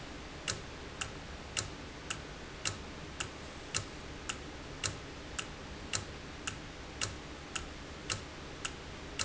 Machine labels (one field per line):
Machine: valve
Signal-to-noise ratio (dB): 0 dB